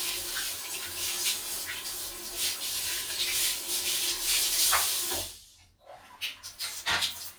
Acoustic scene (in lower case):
restroom